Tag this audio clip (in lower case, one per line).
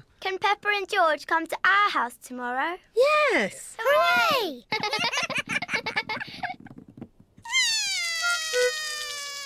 speech